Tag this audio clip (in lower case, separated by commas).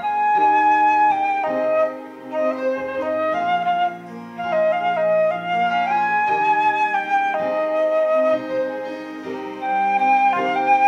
music, wind instrument, flute